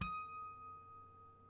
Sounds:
Music, Musical instrument, Harp

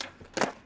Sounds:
Skateboard, Vehicle

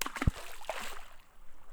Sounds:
Liquid, Water, splatter

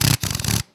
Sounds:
Power tool, Tools, Drill

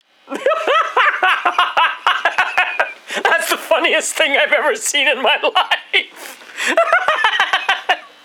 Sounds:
Human voice, Laughter

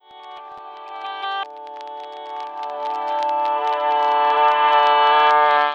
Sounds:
Music, Plucked string instrument, Musical instrument, Guitar

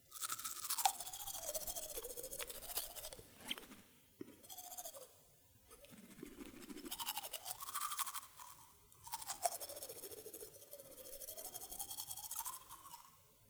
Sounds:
Domestic sounds

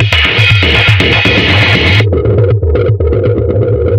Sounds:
Music, Musical instrument, Percussion, Drum kit

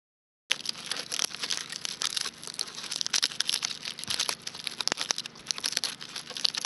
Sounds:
Fire, Crackle

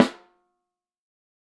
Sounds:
Snare drum, Percussion, Drum, Music, Musical instrument

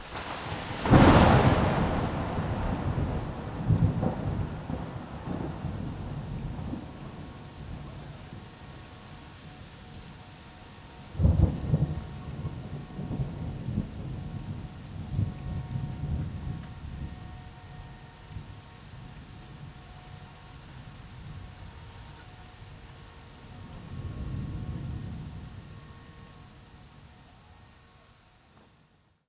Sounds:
Rain, Thunder, Thunderstorm, Water

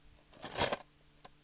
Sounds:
Cutlery, home sounds

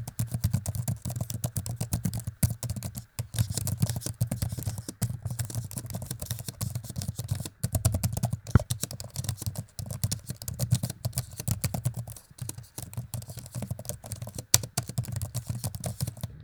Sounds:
Typing, Domestic sounds, Computer keyboard

